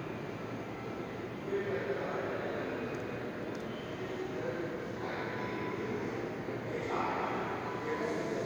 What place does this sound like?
subway station